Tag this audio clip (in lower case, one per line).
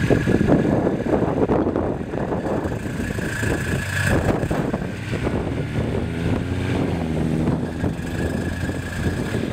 truck
vehicle